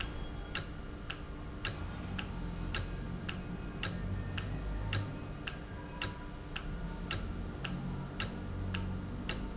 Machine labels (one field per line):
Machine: valve